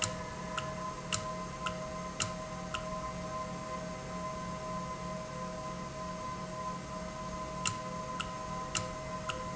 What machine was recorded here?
valve